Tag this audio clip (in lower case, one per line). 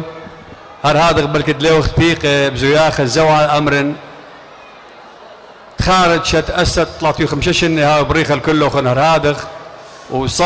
narration
speech
man speaking